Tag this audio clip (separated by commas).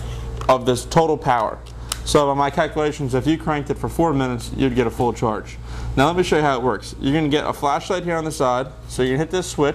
Speech